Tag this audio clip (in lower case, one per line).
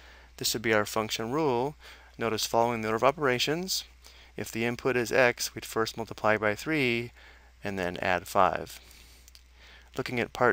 speech